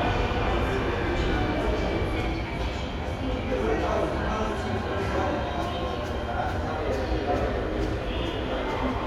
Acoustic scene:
subway station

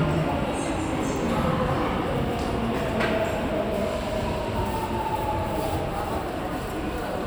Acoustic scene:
subway station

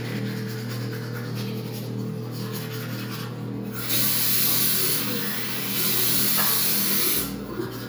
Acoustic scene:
restroom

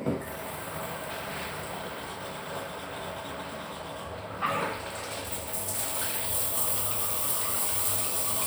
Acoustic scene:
restroom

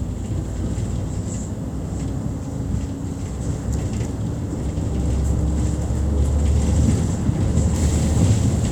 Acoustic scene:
bus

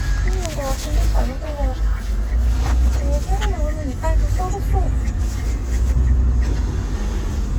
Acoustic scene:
car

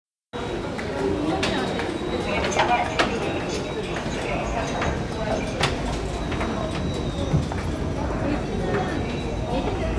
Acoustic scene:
subway station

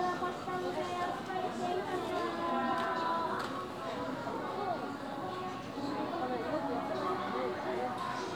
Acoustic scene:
crowded indoor space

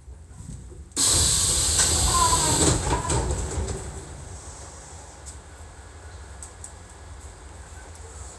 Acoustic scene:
subway train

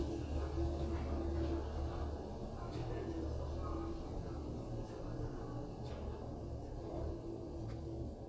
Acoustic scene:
elevator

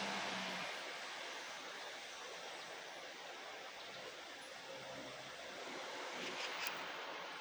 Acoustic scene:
park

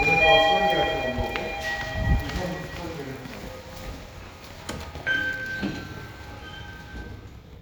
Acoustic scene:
elevator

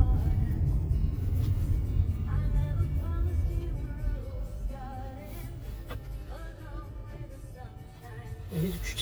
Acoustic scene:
car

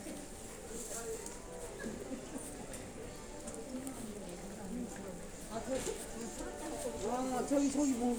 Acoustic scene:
crowded indoor space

